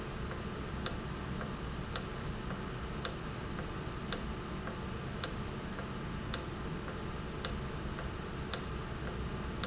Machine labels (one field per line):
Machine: valve